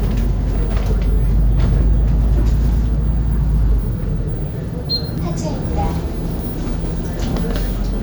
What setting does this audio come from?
bus